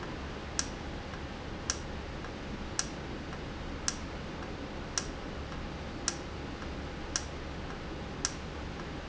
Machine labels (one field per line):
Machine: valve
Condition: normal